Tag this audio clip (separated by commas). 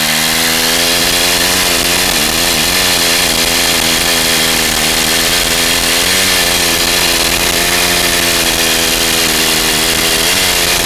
Power tool, Tools